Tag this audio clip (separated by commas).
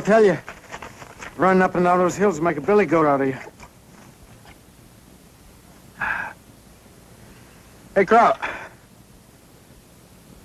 Speech